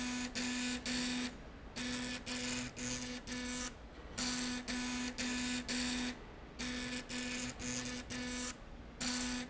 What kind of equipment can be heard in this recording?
slide rail